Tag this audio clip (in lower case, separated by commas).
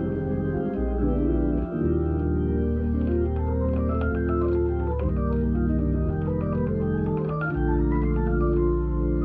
playing hammond organ